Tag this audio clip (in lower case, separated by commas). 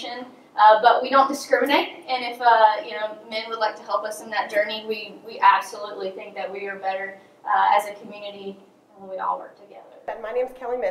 speech